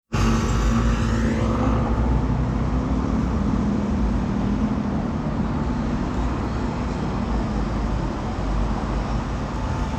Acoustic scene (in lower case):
residential area